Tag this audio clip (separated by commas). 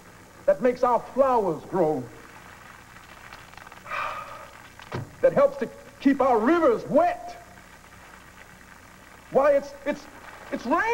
Speech